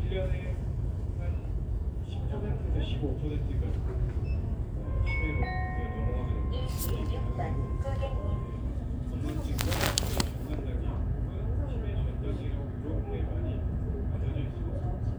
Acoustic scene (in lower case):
crowded indoor space